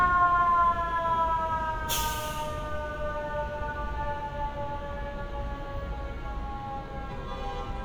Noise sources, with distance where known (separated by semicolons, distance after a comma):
car horn, far; siren, far